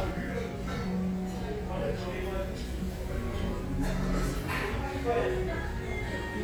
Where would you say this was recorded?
in a restaurant